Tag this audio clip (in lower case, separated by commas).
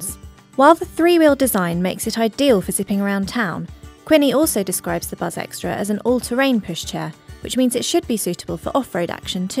speech, music